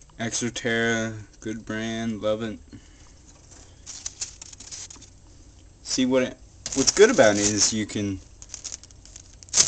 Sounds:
speech

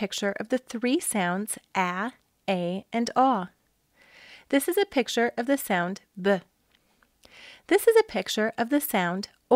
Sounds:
speech

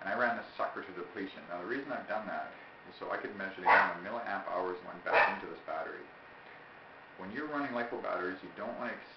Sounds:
pets

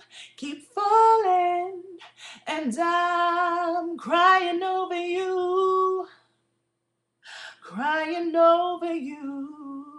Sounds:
female singing

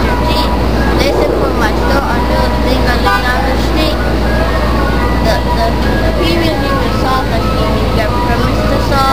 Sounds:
speech

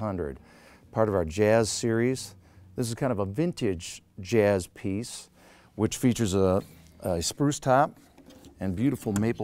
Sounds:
speech

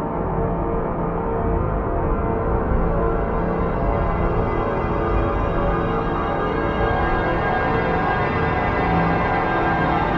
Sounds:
music

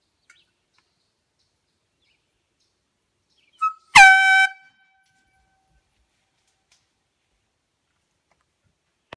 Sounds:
outside, rural or natural
truck horn

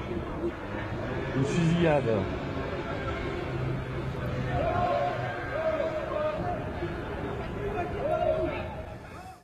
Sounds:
speech

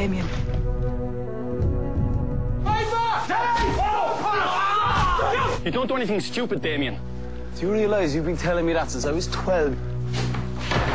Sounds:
music
speech

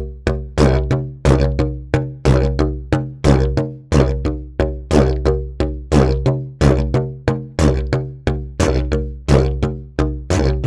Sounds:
playing didgeridoo

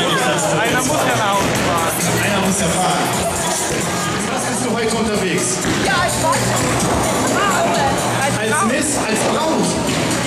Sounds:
bowling impact

